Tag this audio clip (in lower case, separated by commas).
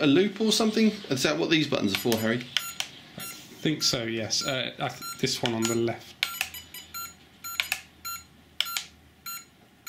inside a small room, speech